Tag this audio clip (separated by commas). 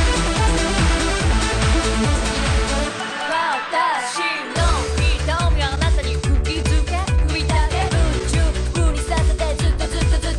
Techno, Music